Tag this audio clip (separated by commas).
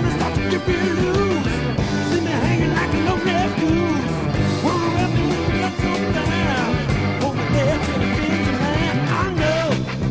Music